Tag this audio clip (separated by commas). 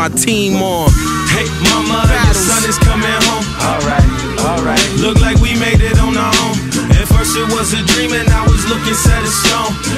Rapping